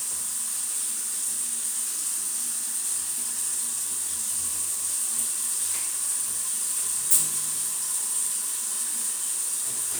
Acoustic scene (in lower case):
restroom